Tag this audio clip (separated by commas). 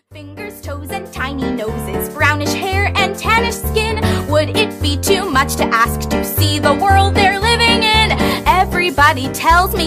Music for children